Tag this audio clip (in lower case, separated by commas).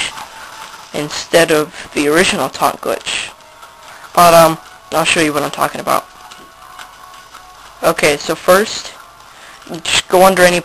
speech